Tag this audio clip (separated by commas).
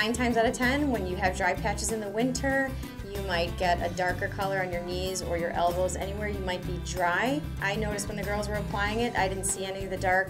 Speech, Music